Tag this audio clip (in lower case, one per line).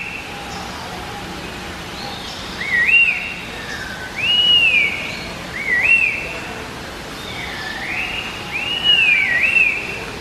wood thrush calling